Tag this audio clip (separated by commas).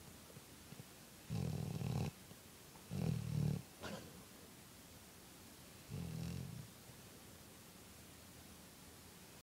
pets, Animal, Dog